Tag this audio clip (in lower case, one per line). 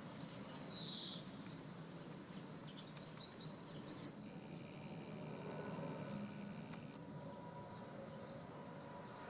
insect
environmental noise